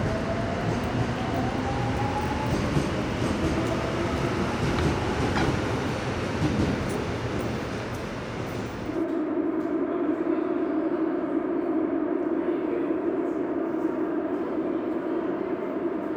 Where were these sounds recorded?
in a subway station